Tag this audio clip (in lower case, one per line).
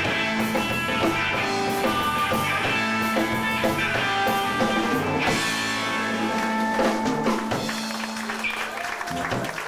music